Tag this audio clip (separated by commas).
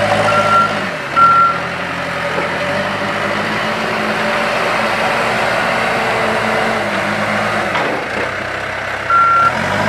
Vehicle, outside, rural or natural